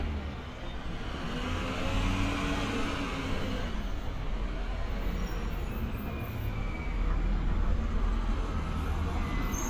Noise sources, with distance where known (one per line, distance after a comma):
large-sounding engine, near